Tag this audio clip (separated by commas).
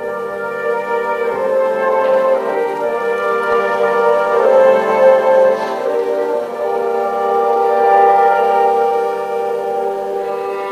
Music, fiddle, Musical instrument